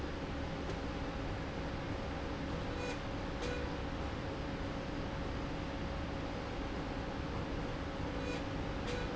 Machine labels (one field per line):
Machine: slide rail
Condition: normal